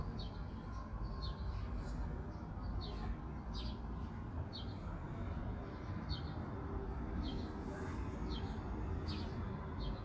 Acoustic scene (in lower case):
park